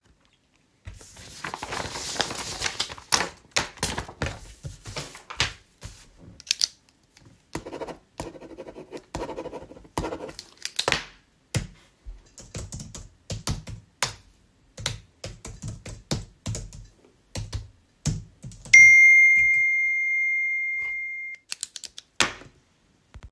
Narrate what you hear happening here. I collected some sheets of paper and sorted them. Then i clicked my pen and wrote some notes on the sheets. Then I clicked the pen again and started typing on my keyboard. While typing my phone received a notification. Then i clicked the pen again.